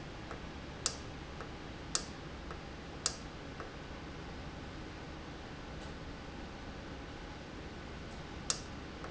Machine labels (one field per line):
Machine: valve